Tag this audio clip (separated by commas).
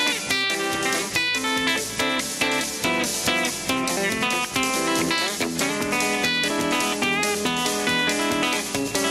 Strum, Electric guitar, playing electric guitar, Acoustic guitar, Guitar, Music, Musical instrument